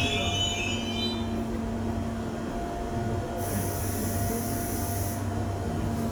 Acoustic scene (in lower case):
subway station